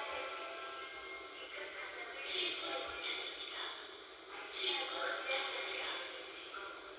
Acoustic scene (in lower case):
subway train